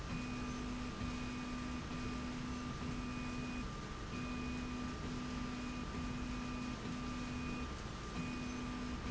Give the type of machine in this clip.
slide rail